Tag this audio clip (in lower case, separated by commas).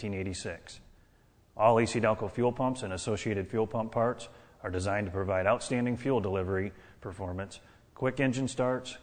speech